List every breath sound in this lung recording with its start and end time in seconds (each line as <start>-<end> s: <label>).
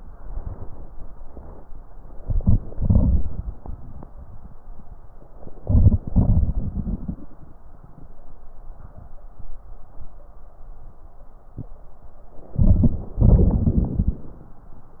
2.17-2.57 s: inhalation
2.73-3.58 s: exhalation
5.63-6.01 s: inhalation
6.05-7.25 s: exhalation
6.05-7.25 s: crackles
12.58-13.14 s: inhalation
13.13-14.22 s: exhalation
13.13-14.22 s: crackles